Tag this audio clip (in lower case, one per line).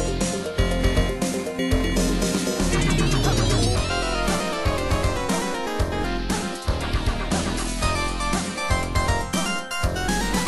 soundtrack music
music